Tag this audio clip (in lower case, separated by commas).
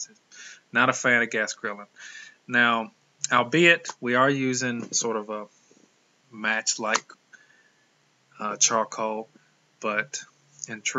speech